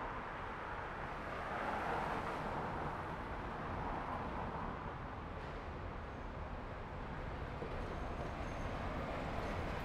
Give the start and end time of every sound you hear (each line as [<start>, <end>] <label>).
[0.00, 4.98] car
[0.00, 4.98] car wheels rolling
[5.94, 9.85] bus
[5.94, 9.85] bus wheels rolling
[9.55, 9.85] bus brakes